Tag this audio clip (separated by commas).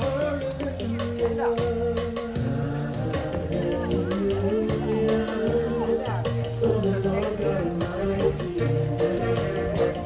Speech, Soul music, Theme music, Happy music, Music